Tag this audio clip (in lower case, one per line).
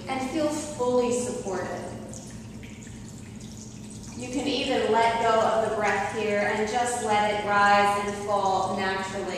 speech
inside a large room or hall